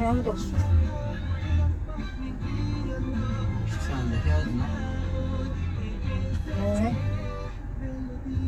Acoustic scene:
car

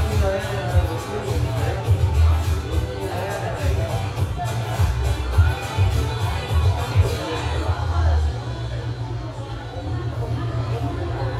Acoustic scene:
cafe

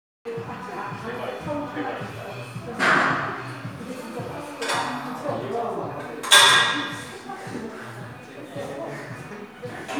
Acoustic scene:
crowded indoor space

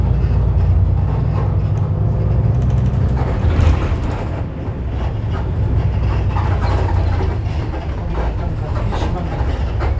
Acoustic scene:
bus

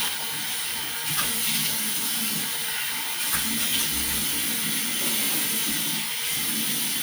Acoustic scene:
restroom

